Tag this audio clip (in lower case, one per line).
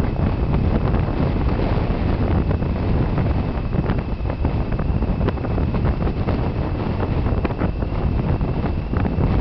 wind noise (microphone)
surf
wind rustling leaves
ocean
rustling leaves